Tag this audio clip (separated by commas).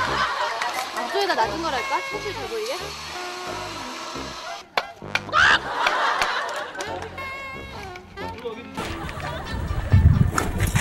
Speech, Music